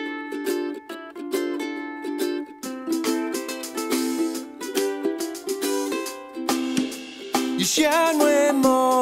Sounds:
Music, Blues

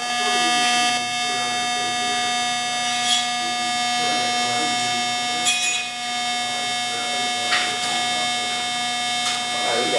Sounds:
Speech

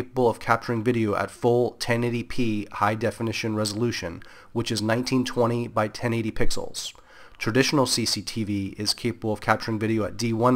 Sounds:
Speech

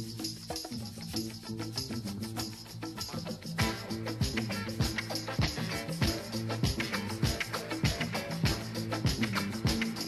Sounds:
Music

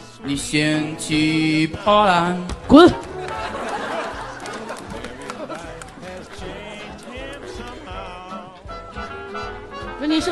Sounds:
yodelling

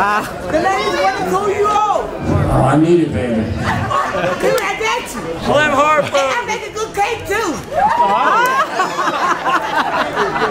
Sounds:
Speech

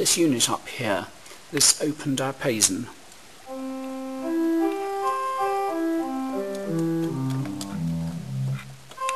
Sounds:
Electronic organ, Organ

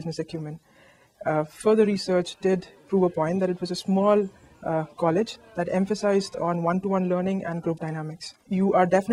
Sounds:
Speech

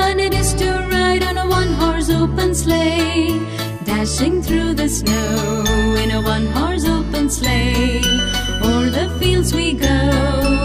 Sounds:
Singing, Music for children, Music, Jingle bell

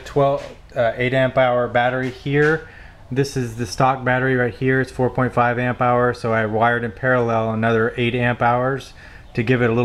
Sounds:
Speech

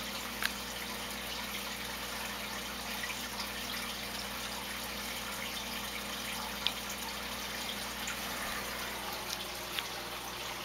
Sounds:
Stream

